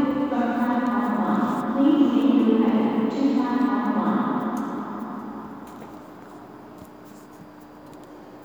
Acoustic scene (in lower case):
subway station